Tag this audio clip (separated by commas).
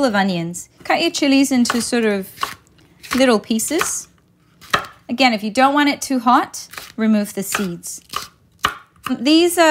Speech